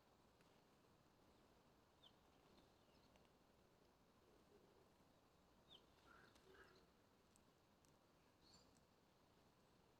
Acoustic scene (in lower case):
park